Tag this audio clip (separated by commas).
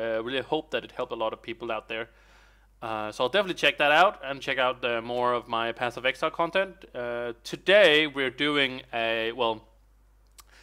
Speech